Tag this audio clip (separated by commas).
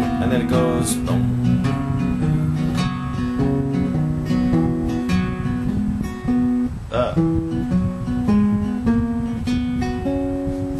Music, Musical instrument, Speech, Plucked string instrument, Guitar, Acoustic guitar